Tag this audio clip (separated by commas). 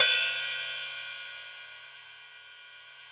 Cymbal, Musical instrument, Music, Percussion, Hi-hat